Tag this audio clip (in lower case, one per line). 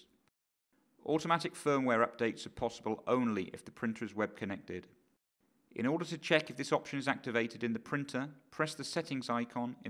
speech